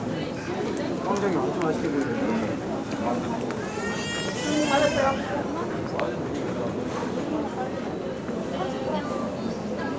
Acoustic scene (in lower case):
crowded indoor space